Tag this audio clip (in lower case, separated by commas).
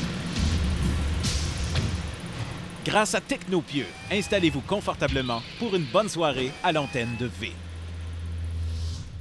speech